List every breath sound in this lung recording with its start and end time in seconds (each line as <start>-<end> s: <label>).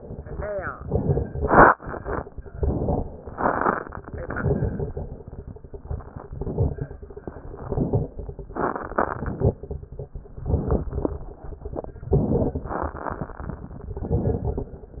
0.72-1.29 s: inhalation
0.72-1.29 s: crackles
2.50-3.08 s: inhalation
2.50-3.08 s: crackles
4.19-5.07 s: inhalation
4.19-5.07 s: crackles
6.30-6.95 s: inhalation
6.30-6.95 s: crackles
7.50-8.14 s: inhalation
7.50-8.14 s: crackles
8.94-9.58 s: inhalation
8.94-9.58 s: crackles
10.49-11.14 s: inhalation
10.49-11.14 s: crackles
12.12-12.77 s: inhalation
12.12-12.77 s: crackles
14.06-14.71 s: inhalation
14.06-14.71 s: crackles